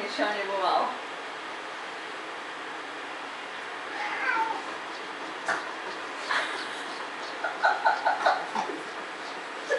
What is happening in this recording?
A woman speaking and a cat meowing